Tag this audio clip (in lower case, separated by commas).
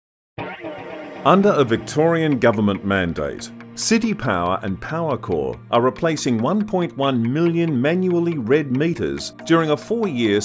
music, speech